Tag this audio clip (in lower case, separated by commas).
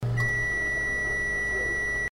bell